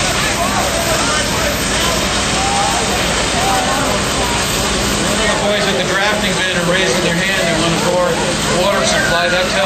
A crowd of men yelling